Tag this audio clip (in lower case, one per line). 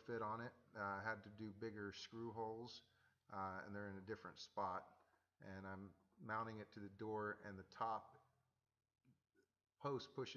speech